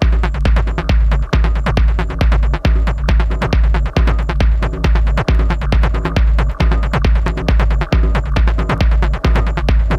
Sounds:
music, techno, electronic music

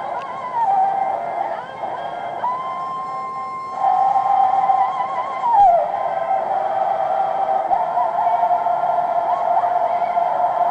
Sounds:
singing, choir

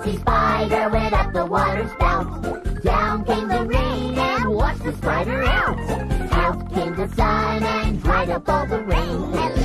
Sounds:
music, funny music, dance music

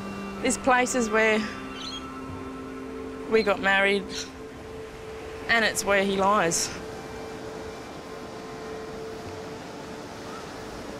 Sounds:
music, speech

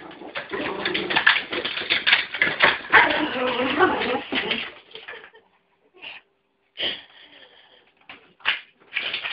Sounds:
animal, dog, domestic animals, bow-wow, whimper (dog)

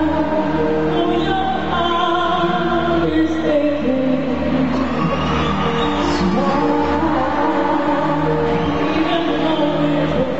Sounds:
music, cheering

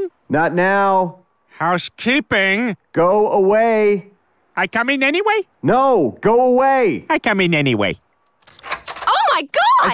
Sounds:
speech

